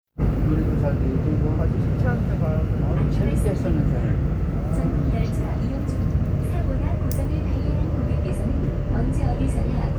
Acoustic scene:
subway train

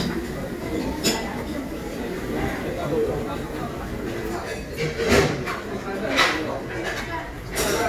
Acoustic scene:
restaurant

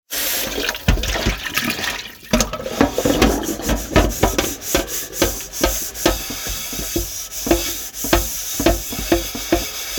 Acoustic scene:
kitchen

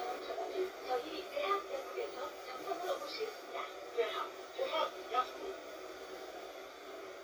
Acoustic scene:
bus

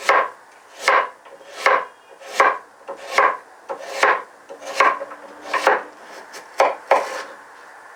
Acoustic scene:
kitchen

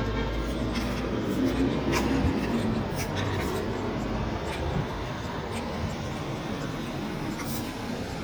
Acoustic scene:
street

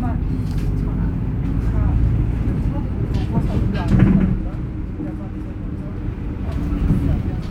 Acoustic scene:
bus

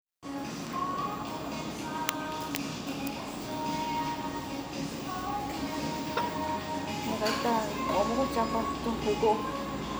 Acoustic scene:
restaurant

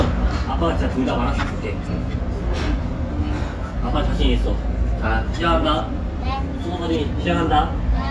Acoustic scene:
restaurant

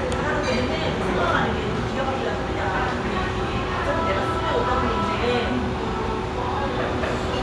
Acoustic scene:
restaurant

